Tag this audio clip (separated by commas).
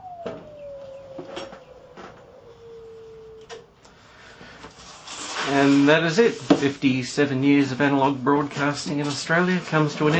Speech, Television